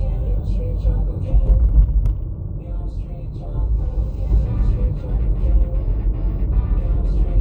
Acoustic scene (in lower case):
car